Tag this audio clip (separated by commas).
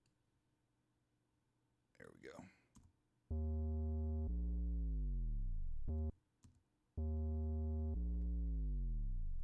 Silence, Speech